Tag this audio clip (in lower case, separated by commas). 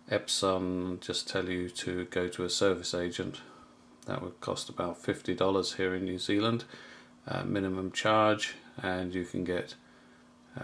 speech